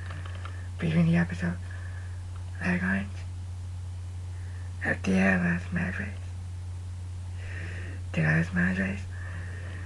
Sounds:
kid speaking, inside a small room, speech

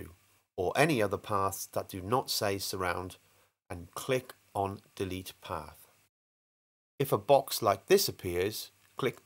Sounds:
speech

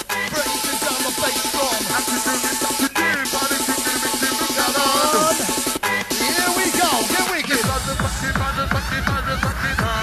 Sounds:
music, techno, electronic music

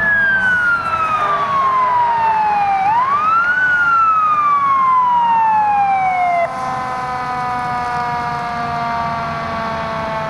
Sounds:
motor vehicle (road), vehicle, emergency vehicle

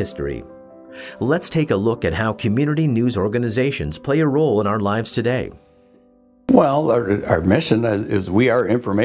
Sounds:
speech

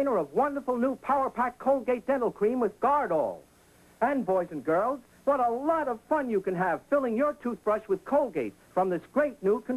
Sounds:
speech

